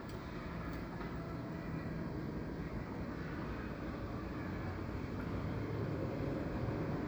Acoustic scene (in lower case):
residential area